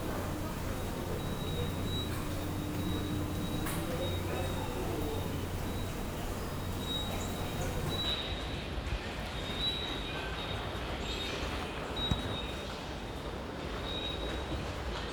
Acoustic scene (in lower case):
subway station